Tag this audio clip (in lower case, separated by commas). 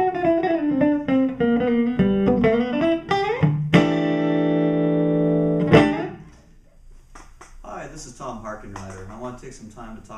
music, speech, guitar, strum, musical instrument, plucked string instrument, acoustic guitar